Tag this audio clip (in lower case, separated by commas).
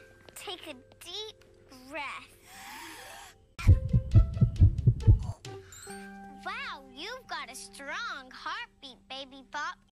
throbbing, heart sounds